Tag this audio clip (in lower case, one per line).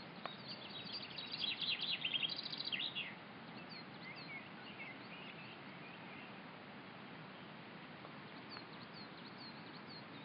black capped chickadee calling